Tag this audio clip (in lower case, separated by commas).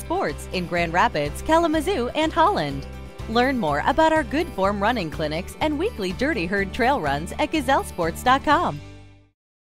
music, speech